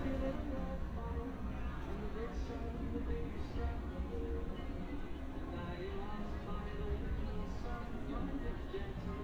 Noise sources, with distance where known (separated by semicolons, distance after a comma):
music from a fixed source